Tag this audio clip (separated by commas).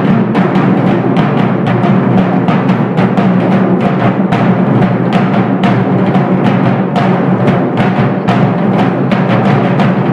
playing timpani